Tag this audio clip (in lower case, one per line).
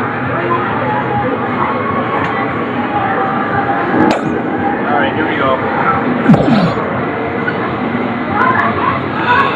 speech